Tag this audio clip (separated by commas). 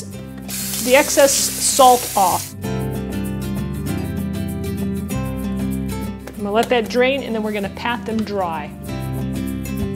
Music, Speech